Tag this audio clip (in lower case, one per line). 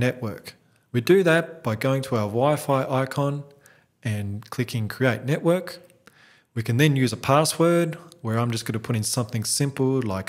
speech